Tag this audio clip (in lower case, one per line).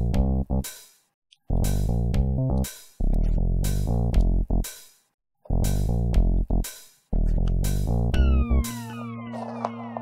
sound effect